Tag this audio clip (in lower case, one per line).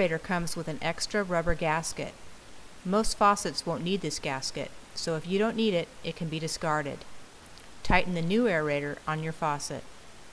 speech